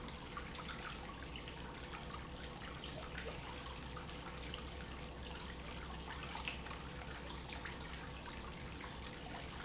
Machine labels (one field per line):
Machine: pump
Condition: normal